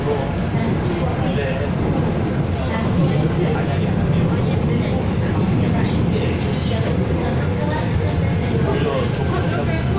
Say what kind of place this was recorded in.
subway train